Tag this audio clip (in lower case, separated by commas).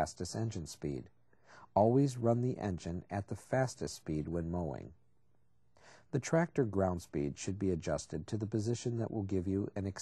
speech